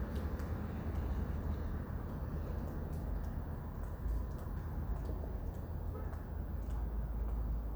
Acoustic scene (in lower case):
residential area